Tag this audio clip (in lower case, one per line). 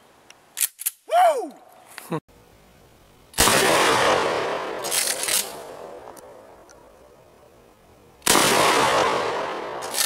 gunshot